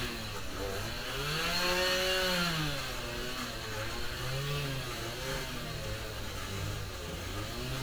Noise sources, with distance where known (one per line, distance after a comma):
unidentified powered saw